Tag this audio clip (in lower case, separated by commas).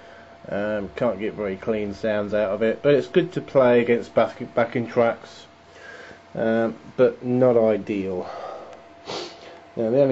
speech